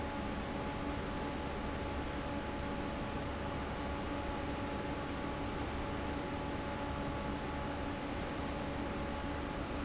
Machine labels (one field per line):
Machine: fan